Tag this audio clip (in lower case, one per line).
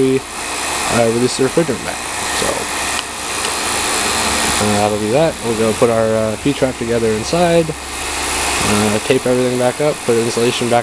speech